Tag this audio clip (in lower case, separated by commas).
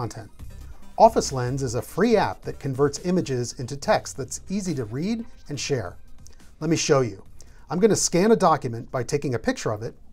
music, speech